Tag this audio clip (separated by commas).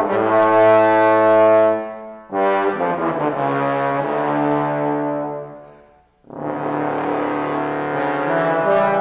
Brass instrument, Trombone